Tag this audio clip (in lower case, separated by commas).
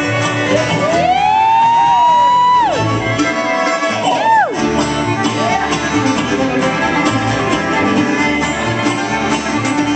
blues, musical instrument, music, fiddle